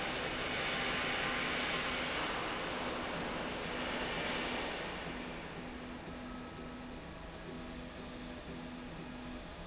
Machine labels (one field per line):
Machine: slide rail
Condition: normal